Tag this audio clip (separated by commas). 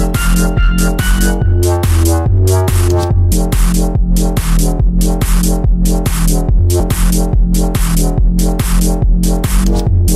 Music, Electronica